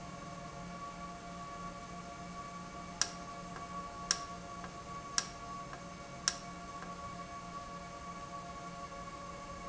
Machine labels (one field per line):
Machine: valve